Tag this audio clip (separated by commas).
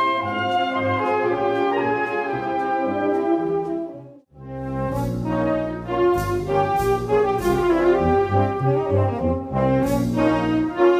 Brass instrument